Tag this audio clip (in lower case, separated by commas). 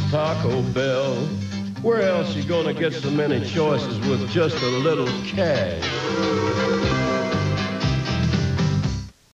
music